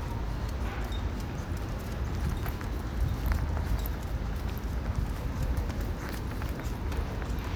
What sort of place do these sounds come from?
residential area